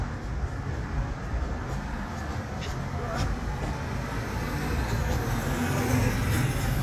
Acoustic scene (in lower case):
street